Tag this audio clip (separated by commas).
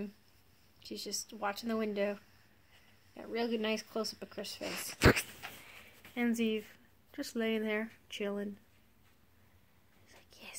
Speech